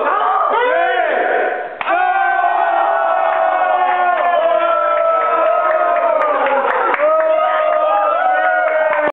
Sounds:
speech

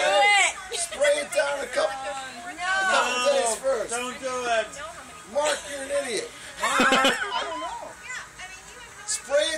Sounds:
speech

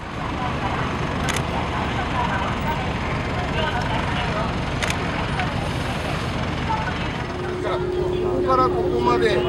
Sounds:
volcano explosion

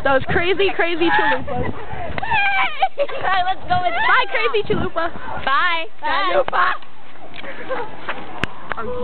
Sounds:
speech

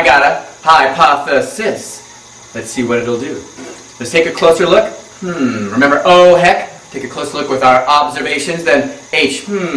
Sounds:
speech

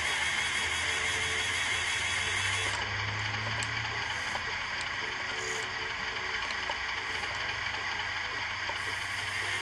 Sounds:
sound effect

